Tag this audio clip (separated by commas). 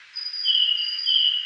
Animal, Bird, Wild animals